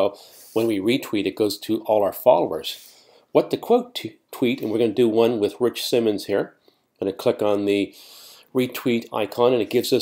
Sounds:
speech

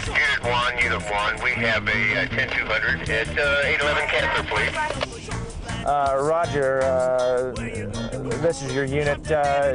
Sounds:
music
speech

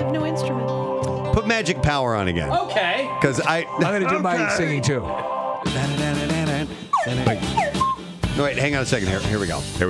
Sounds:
speech
music

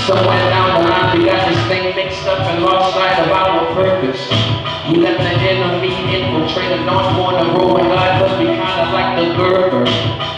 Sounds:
rapping
male singing
music

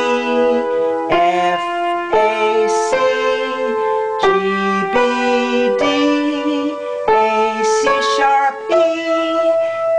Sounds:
music

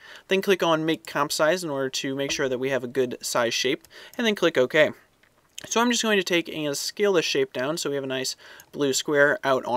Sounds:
speech

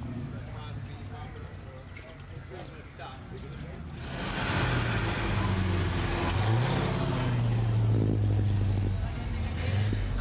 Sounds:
car
vehicle
speech

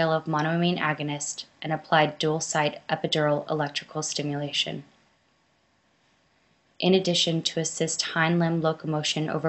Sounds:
speech

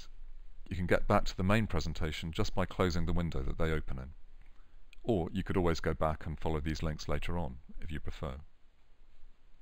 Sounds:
speech

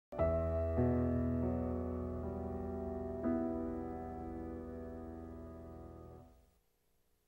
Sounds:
music

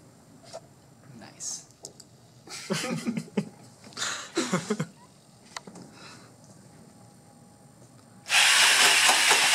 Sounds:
speech
propeller

